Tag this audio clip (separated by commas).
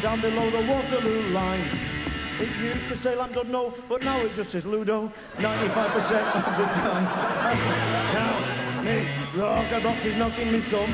Singing, Rock and roll, Music